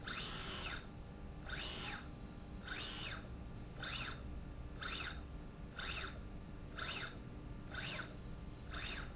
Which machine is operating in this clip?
slide rail